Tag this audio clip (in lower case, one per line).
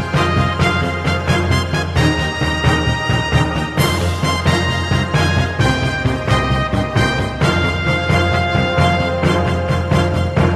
theme music
music